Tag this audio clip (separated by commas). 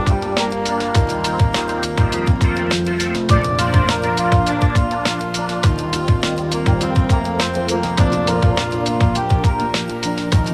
Music